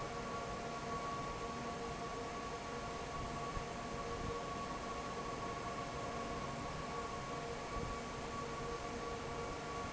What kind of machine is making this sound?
fan